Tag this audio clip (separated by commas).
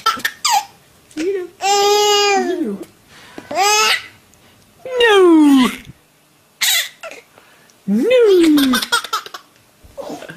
Laughter, Speech